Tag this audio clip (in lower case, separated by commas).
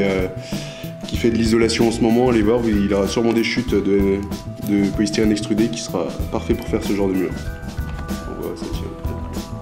speech, music